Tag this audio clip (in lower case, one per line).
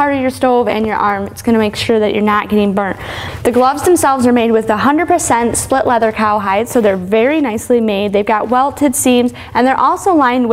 speech